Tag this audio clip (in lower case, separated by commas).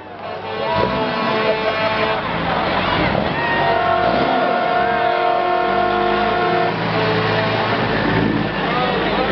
vehicle, truck, speech